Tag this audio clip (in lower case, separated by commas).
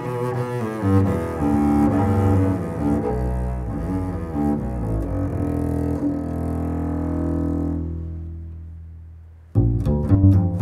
playing double bass, music, double bass, musical instrument